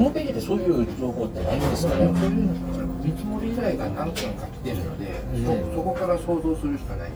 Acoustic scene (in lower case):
restaurant